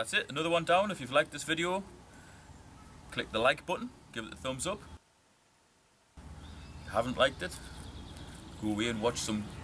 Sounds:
speech

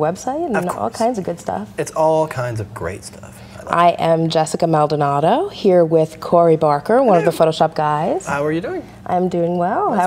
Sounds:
speech

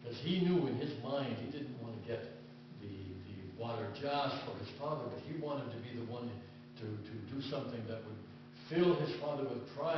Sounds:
speech

